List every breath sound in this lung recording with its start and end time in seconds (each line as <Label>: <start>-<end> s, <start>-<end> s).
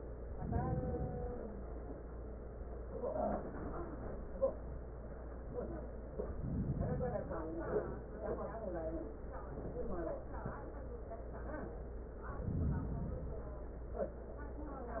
Inhalation: 0.21-1.40 s, 6.29-7.48 s, 12.40-13.59 s